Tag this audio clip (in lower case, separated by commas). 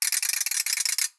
pawl, music, musical instrument, mechanisms, percussion